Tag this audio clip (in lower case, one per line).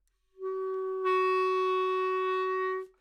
music
musical instrument
wind instrument